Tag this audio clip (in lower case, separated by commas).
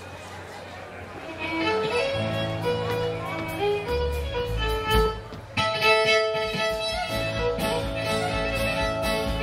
violin, music